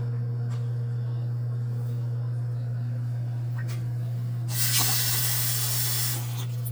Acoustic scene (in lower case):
kitchen